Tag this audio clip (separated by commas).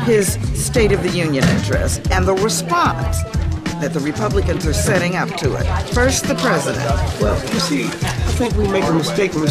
Music, Speech, Conversation, Female speech